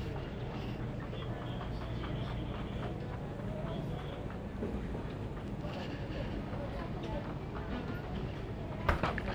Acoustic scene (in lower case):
crowded indoor space